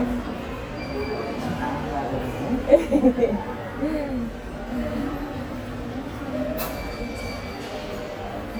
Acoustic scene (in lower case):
subway station